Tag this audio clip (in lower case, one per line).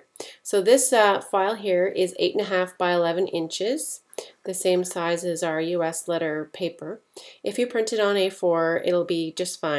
speech